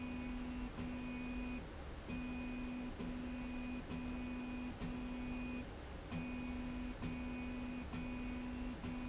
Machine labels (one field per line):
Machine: slide rail